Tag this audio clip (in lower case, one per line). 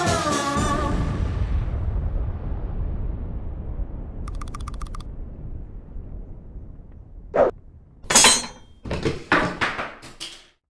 music